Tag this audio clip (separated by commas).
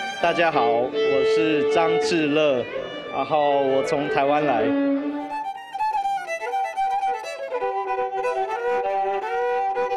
Music, Violin, Speech, Musical instrument